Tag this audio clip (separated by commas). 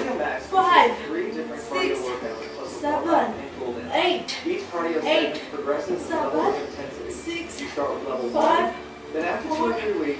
Female speech, Speech